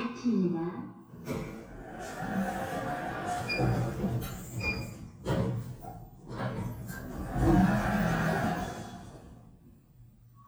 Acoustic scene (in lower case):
elevator